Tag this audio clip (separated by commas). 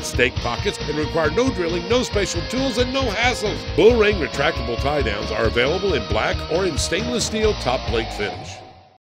Speech, Music